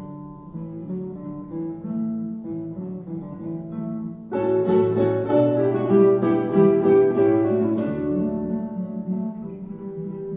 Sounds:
acoustic guitar, guitar, musical instrument, music

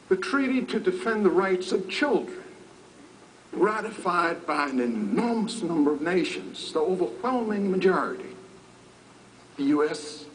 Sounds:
speech

